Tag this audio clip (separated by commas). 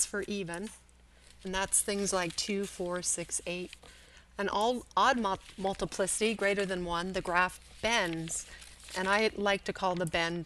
monologue